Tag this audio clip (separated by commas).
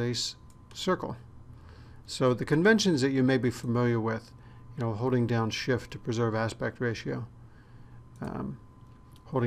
Speech